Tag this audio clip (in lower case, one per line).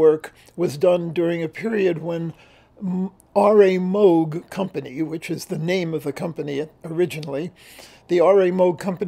speech